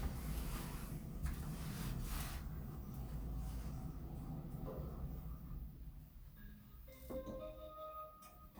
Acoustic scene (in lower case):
elevator